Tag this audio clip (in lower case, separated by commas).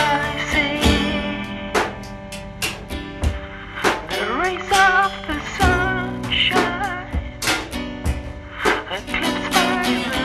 music